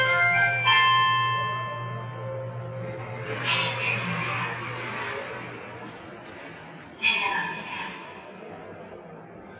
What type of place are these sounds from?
elevator